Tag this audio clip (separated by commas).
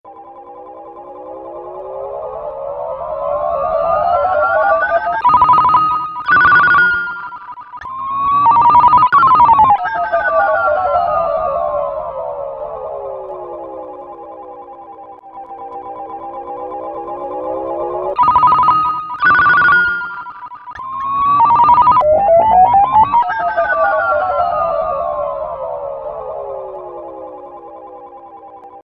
Alarm, Ringtone, Telephone